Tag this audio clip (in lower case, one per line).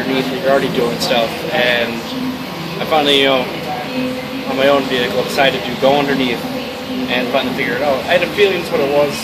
speech